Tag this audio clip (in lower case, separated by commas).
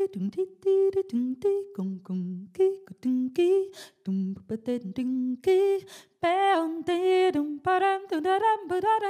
female singing